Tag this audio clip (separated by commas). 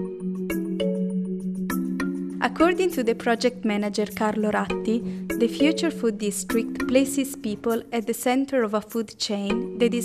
Speech, Music